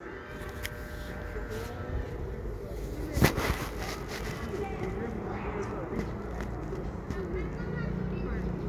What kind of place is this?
residential area